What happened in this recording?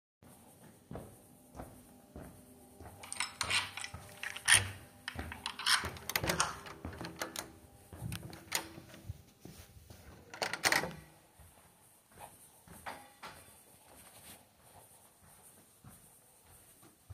Walking in the hallway and then open the door using the key and then go in